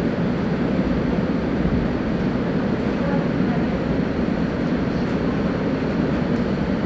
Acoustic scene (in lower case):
subway station